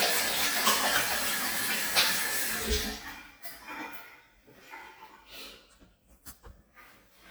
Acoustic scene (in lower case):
restroom